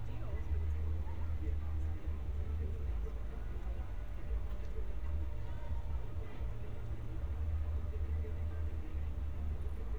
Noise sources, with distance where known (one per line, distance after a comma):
music from an unclear source, far